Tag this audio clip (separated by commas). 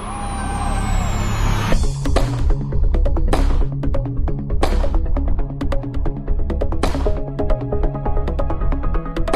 Music